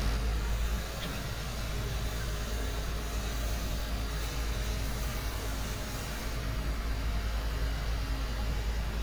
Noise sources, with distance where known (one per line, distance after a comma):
small-sounding engine, near